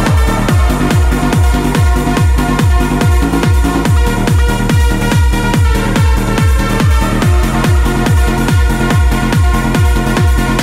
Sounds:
music

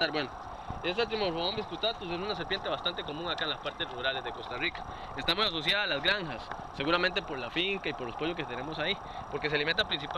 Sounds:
outside, rural or natural, speech

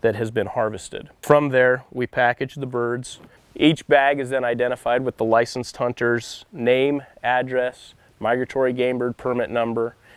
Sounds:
speech

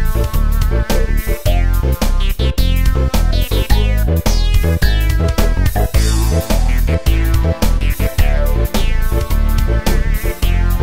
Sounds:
music, video game music

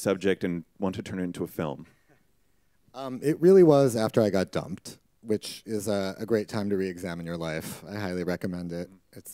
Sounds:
speech

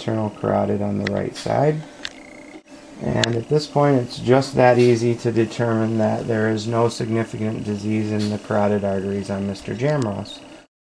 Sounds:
speech, inside a small room

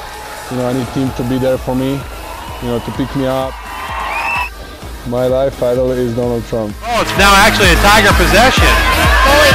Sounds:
music, speech

